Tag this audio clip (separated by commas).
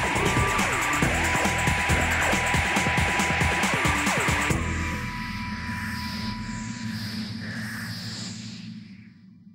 Music